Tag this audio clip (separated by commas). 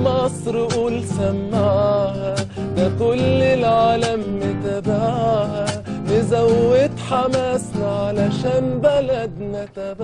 Musical instrument, Guitar, Music, Plucked string instrument